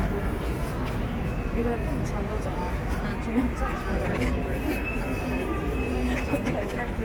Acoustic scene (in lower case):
subway station